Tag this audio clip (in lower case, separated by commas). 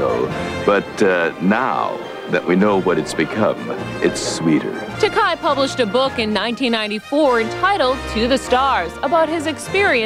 music, speech